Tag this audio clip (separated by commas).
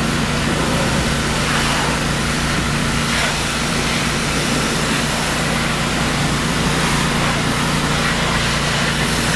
Vehicle